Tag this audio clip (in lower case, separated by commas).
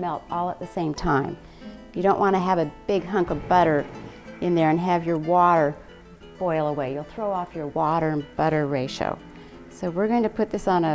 speech, music